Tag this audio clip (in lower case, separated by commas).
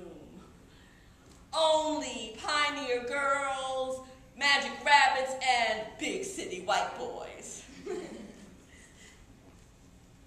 speech